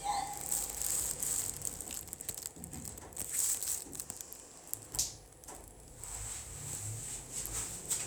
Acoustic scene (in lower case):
elevator